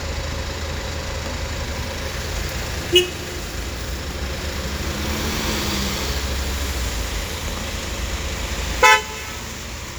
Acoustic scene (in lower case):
street